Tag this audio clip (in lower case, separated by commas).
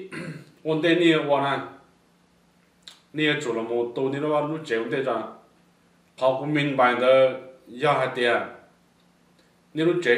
monologue, speech, male speech